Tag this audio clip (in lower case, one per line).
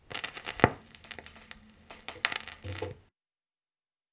crackle